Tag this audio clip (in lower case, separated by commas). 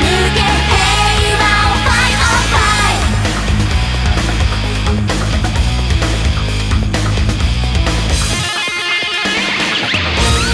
heavy metal